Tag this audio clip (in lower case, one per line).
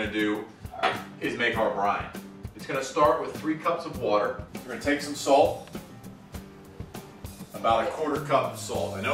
speech
music